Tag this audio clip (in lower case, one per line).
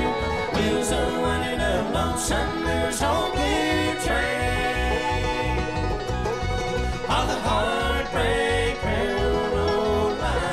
music
bluegrass